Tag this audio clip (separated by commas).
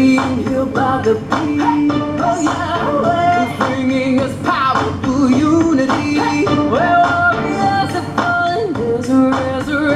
Music